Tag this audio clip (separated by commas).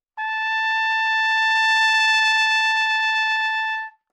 Music, Trumpet, Musical instrument, Brass instrument